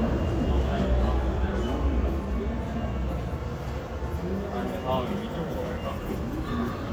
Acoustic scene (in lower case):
crowded indoor space